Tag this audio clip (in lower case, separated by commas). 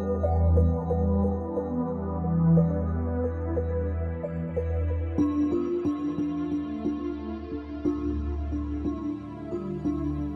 music